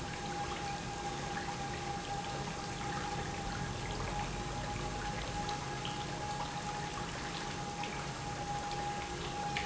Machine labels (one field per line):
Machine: pump